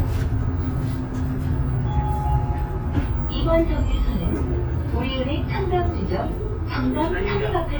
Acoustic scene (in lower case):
bus